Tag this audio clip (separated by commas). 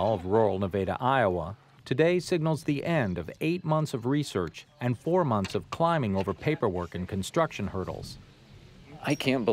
Speech